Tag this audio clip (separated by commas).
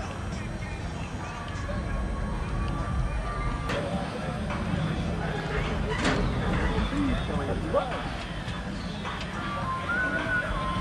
Speech